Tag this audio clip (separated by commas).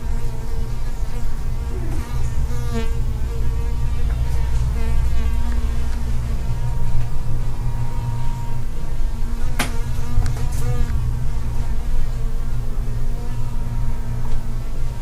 Animal, Insect, Buzz, Wild animals